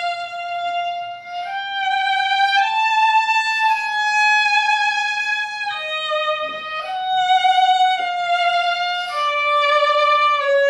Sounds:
fiddle, bowed string instrument

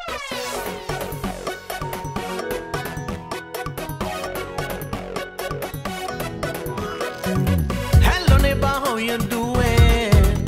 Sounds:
music

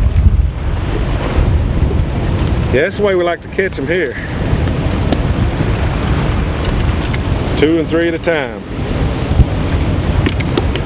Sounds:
speech, outside, rural or natural

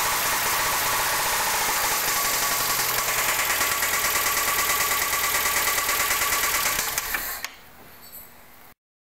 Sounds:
engine, idling

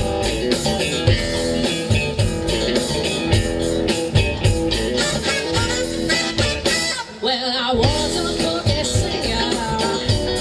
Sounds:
soundtrack music, music

